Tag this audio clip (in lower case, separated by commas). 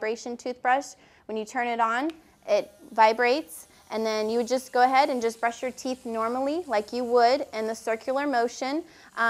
speech, electric toothbrush